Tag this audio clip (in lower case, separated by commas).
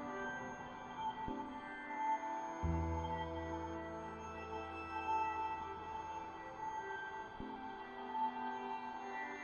music